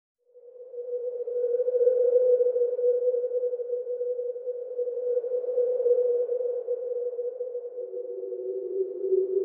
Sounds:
ambient music, music, electronic music, sonar

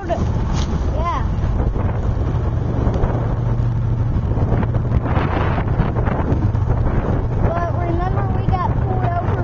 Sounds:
speech, wind noise (microphone), train, train wagon, rail transport, vehicle

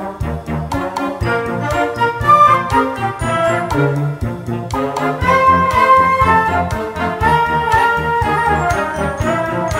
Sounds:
trombone

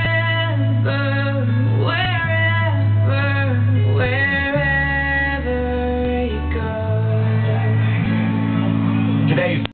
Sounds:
speech, music

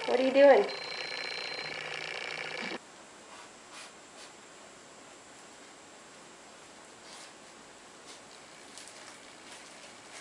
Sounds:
speech, inside a small room

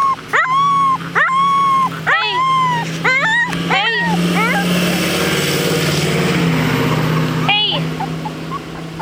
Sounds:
dog whimpering

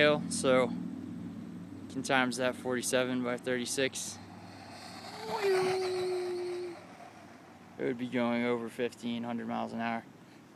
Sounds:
speech

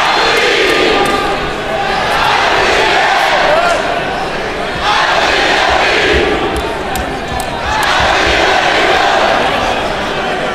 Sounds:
speech

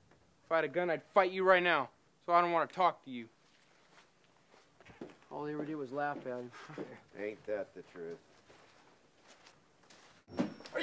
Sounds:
speech

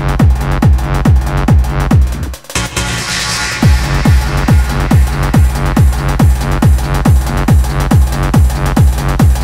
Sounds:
electronic music, music, pop music, techno

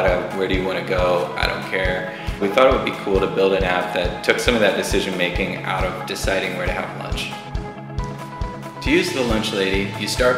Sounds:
music, speech

